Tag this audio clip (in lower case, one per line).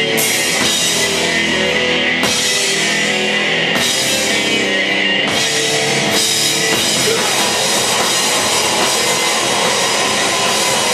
music